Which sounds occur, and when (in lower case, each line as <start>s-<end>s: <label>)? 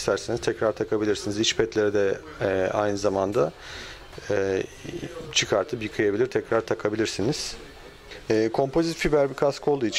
0.0s-9.9s: background noise
0.0s-3.5s: man speaking
5.3s-7.6s: man speaking
8.2s-9.9s: man speaking